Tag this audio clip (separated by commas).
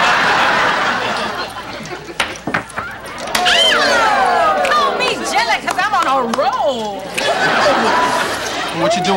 Speech